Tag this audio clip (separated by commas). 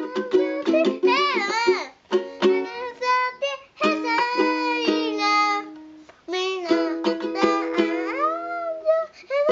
playing ukulele